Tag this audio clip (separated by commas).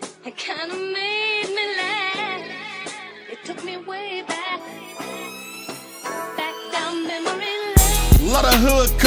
Soundtrack music, Music